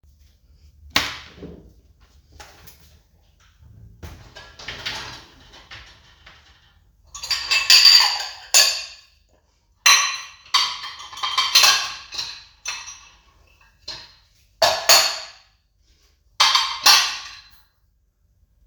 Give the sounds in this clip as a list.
cutlery and dishes